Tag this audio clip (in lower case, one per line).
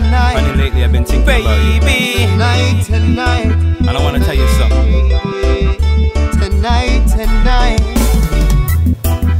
music
speech